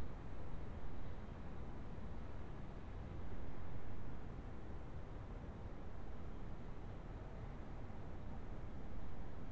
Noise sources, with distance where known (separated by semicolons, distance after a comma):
background noise